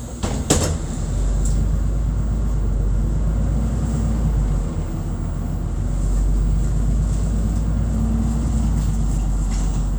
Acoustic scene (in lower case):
bus